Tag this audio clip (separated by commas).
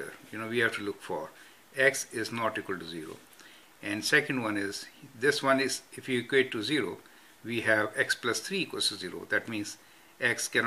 Speech, inside a small room